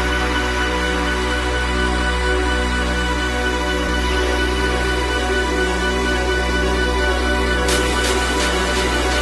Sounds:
Music

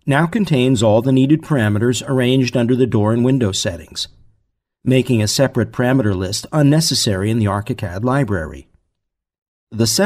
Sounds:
Speech

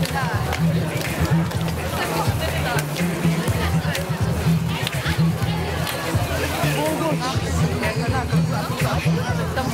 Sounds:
Music, Speech

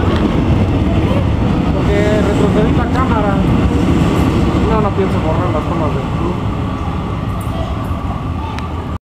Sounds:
Speech, Vehicle

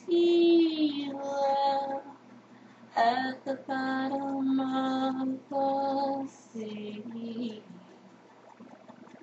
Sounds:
Female singing

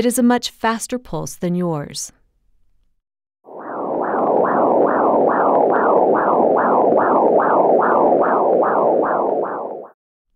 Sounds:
Speech

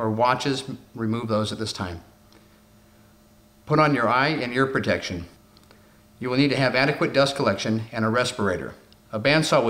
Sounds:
Speech

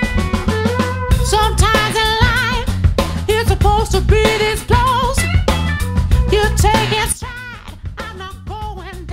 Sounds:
Music

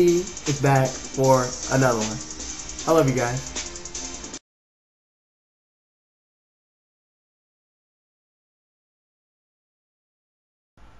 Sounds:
Music, Speech

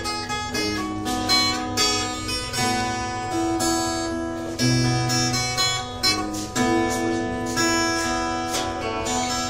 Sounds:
Plucked string instrument, Guitar, Music, Acoustic guitar, Musical instrument

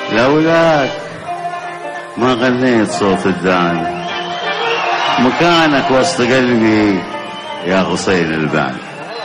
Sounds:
Speech, Music

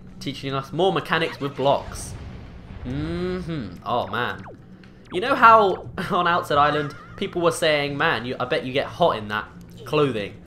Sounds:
Music, Speech

